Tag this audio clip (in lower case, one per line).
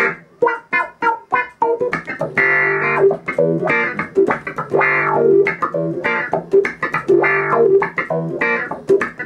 music